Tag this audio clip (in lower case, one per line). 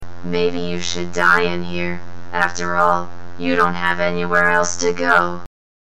speech
human voice